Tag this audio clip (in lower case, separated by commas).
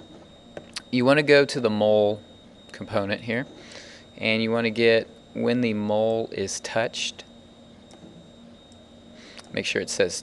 speech